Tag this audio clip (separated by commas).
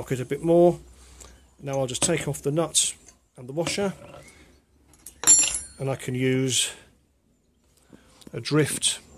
Speech